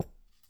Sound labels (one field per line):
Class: object falling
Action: being thrown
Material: ceramic